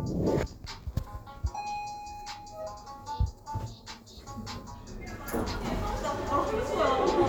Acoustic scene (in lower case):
elevator